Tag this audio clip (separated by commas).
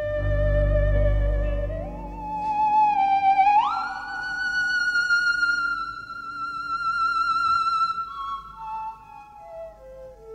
playing theremin